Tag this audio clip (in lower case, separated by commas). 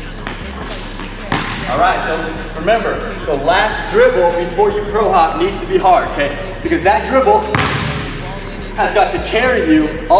music, speech, basketball bounce